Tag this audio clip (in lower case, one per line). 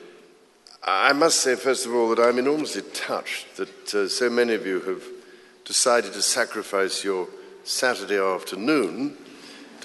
speech
man speaking